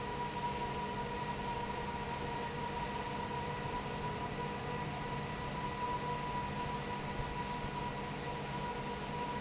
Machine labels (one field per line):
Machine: fan